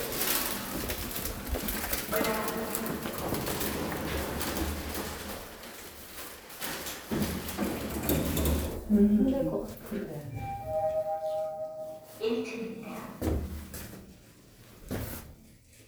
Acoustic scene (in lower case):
elevator